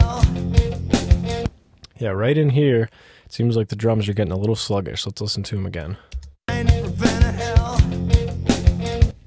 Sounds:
Music, Drum, Musical instrument, Drum kit, Bass drum, Speech

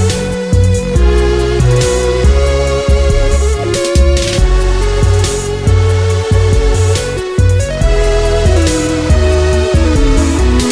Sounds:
Music

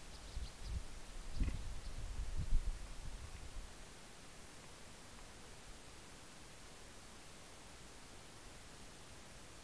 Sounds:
Rustling leaves

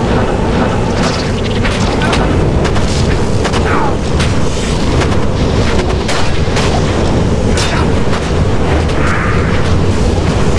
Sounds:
Wind, Wind noise (microphone)

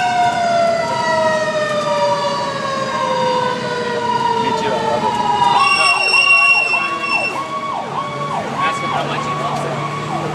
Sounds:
Emergency vehicle, Speech, fire truck (siren), Vehicle

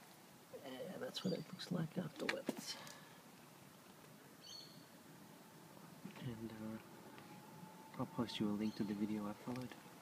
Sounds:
outside, rural or natural, Speech, Environmental noise

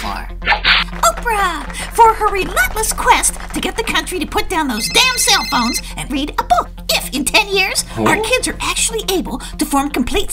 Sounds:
Speech, Music

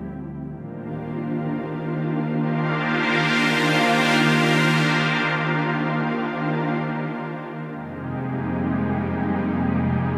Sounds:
Keyboard (musical), Electric piano, Piano

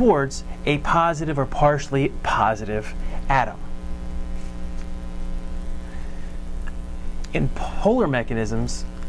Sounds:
Writing, Speech

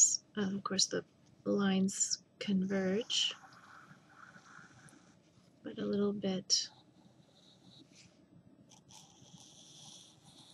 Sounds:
Speech

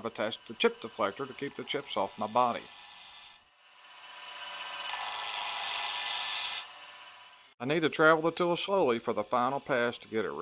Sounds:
Speech, Tools

